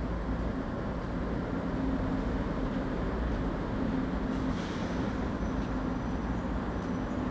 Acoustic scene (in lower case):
residential area